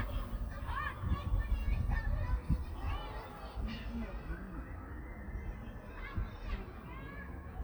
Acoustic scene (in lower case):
park